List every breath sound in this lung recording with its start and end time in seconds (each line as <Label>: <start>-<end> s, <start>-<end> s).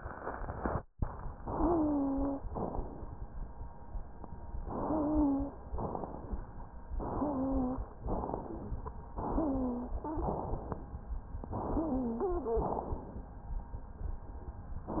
Inhalation: 1.44-2.39 s, 4.61-5.56 s, 6.98-7.93 s, 9.13-10.08 s, 11.52-12.47 s
Exhalation: 2.52-3.27 s, 5.77-6.51 s, 8.06-8.80 s, 10.17-10.91 s, 12.62-13.36 s
Wheeze: 1.44-2.39 s, 4.84-5.58 s, 7.15-7.80 s, 9.35-10.30 s, 11.76-12.71 s